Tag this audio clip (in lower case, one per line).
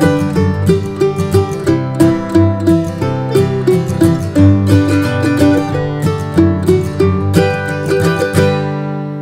playing mandolin